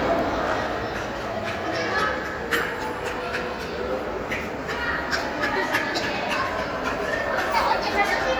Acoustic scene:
crowded indoor space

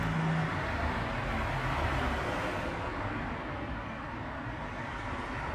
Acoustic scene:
street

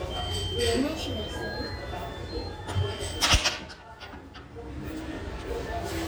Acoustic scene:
restaurant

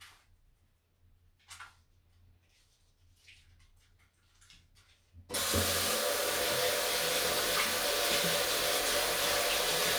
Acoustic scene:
restroom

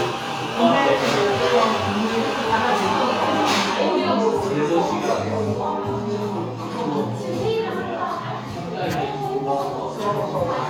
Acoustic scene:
cafe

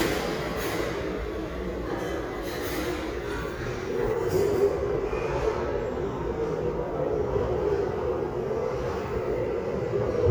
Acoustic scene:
restaurant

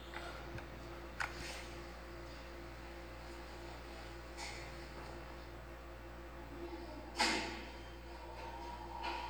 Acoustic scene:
elevator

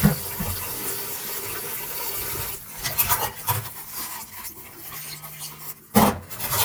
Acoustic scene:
kitchen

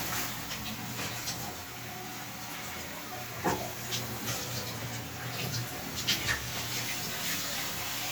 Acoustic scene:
restroom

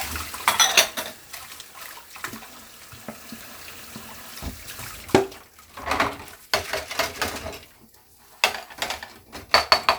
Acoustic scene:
kitchen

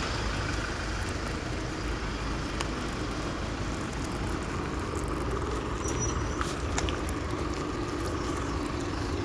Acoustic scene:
street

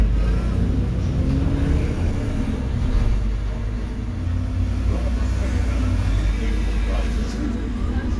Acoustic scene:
bus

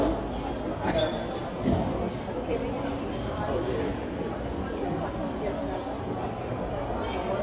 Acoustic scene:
crowded indoor space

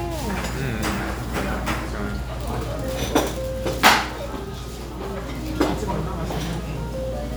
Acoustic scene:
restaurant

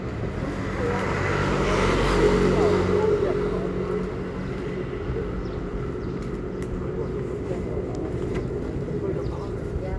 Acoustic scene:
residential area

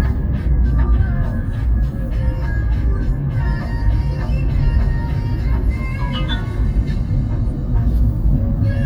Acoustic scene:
car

